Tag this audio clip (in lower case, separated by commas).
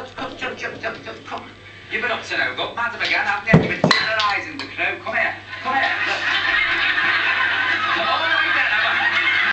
speech